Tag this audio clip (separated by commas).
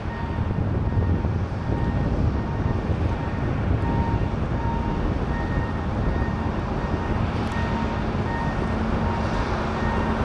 Field recording